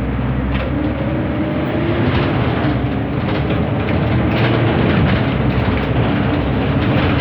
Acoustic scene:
bus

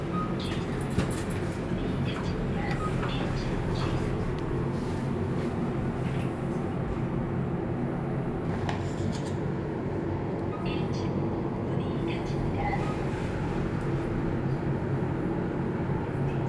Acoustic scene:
elevator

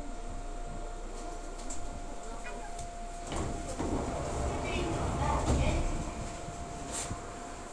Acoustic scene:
subway train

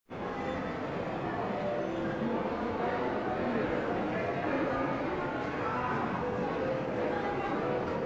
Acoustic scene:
crowded indoor space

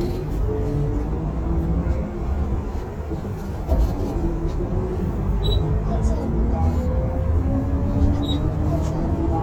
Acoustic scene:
bus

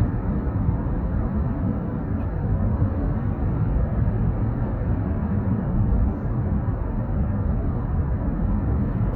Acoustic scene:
car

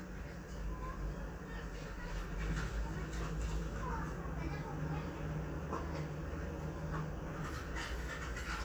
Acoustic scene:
residential area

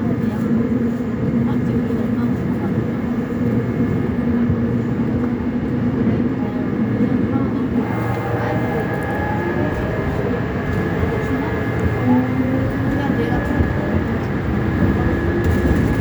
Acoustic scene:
subway train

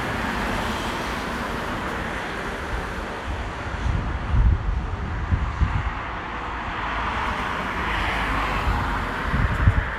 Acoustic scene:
street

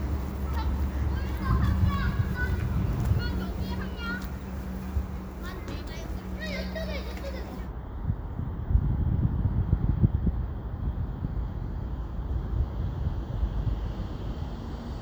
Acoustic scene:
residential area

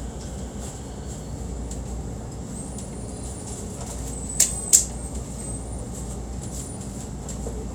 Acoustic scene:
subway train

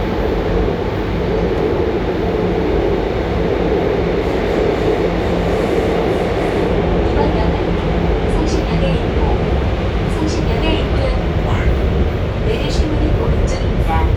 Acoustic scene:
subway train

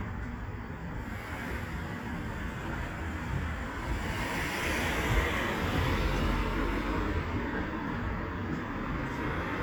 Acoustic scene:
street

